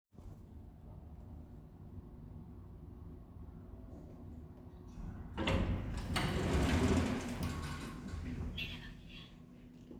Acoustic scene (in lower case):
elevator